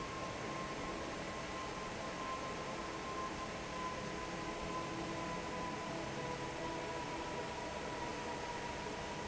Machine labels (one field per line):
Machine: fan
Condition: normal